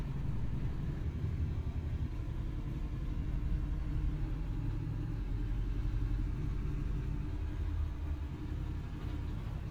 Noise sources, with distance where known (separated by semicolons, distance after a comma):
engine of unclear size